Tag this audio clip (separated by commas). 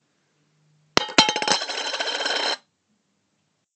Coin (dropping), home sounds